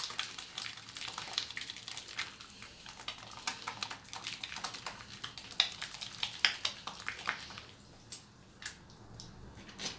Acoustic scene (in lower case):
restroom